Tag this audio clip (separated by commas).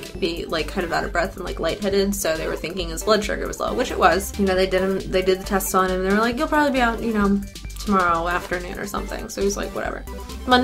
Speech, Music